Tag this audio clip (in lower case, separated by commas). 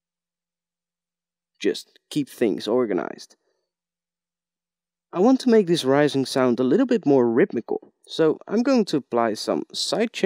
speech